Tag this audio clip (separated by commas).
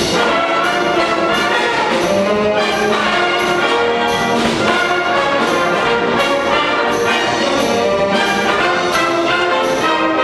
Trumpet, Music, Orchestra, Clarinet, Brass instrument, Musical instrument